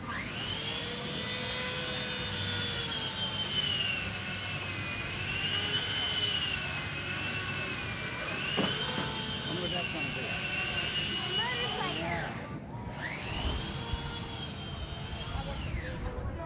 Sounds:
Tools, Sawing

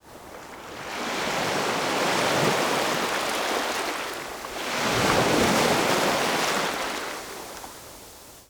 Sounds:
Ocean, Water, Waves

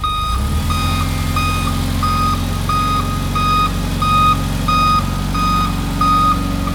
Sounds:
Engine

